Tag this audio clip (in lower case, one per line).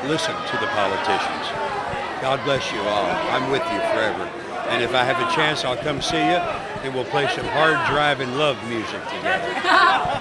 speech